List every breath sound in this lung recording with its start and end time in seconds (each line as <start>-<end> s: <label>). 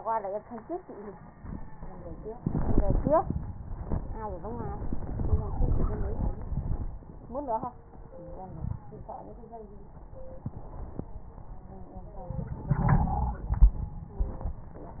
8.43-8.87 s: wheeze
12.32-13.49 s: inhalation
12.69-13.49 s: wheeze